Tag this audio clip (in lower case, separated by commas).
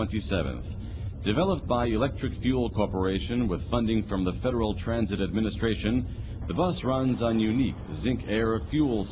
vehicle, speech